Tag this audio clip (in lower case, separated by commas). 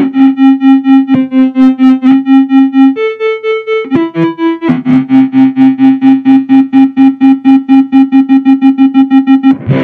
effects unit, music, musical instrument